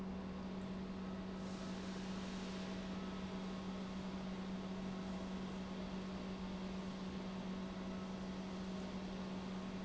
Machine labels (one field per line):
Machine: pump